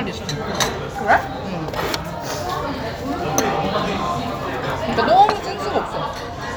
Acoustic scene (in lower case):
crowded indoor space